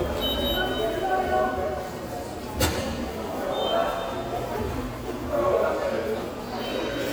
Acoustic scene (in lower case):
subway station